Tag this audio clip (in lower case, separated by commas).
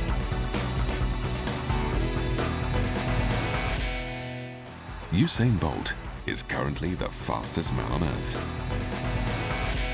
speech, music, outside, urban or man-made